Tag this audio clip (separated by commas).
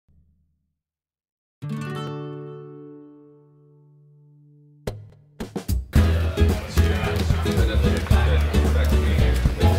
inside a large room or hall, Speech, Music